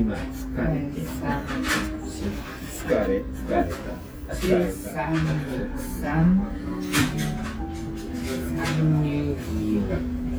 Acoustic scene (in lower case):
restaurant